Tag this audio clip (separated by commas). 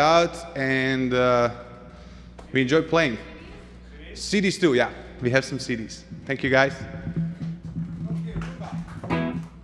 Music, Speech